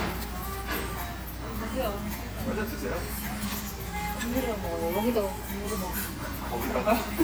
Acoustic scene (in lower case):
restaurant